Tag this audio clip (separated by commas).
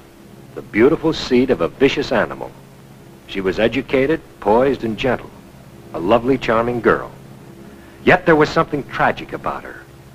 Speech